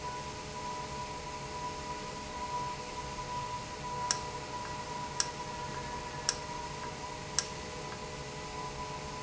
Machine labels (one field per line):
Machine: valve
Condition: normal